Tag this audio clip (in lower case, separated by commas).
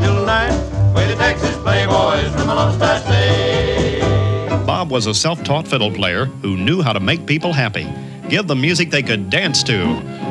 country, swing music, music, song